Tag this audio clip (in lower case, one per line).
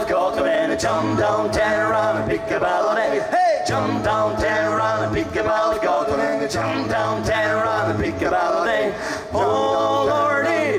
music